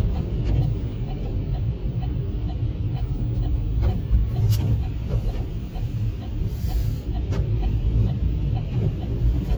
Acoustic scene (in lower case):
car